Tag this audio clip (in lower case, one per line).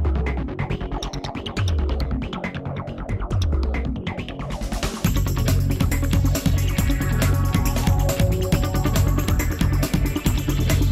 music